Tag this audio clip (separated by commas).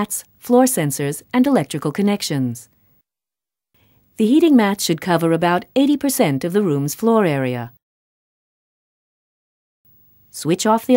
Speech